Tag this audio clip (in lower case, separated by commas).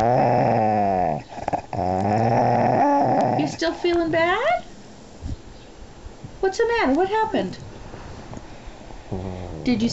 speech, yip